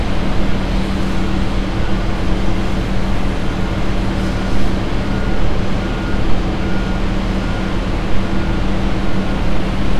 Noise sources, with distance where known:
reverse beeper

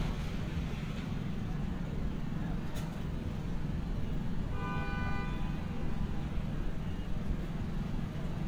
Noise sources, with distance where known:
small-sounding engine, near
car horn, near

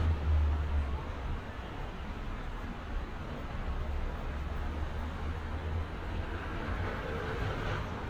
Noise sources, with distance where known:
medium-sounding engine, far
person or small group talking, far

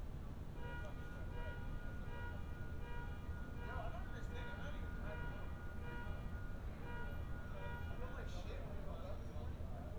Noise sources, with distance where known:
car alarm, far
person or small group talking, near

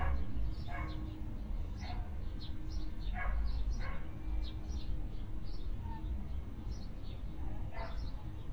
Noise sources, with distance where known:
dog barking or whining, far

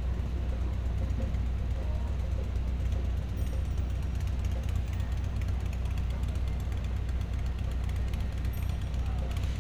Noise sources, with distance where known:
medium-sounding engine

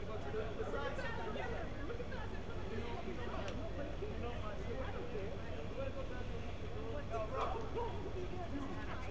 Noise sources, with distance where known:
person or small group shouting, far

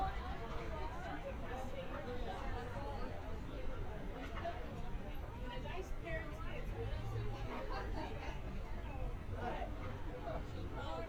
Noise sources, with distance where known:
person or small group talking, near

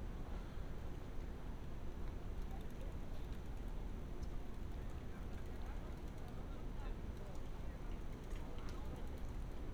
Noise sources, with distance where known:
person or small group talking, far

